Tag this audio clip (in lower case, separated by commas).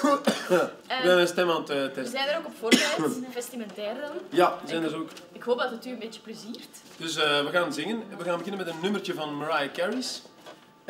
speech